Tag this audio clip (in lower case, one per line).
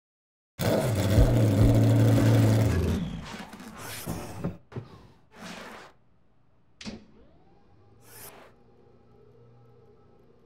car